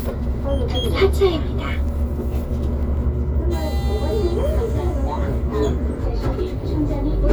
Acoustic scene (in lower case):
bus